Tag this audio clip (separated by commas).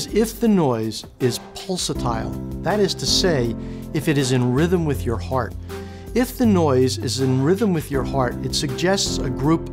Music, Speech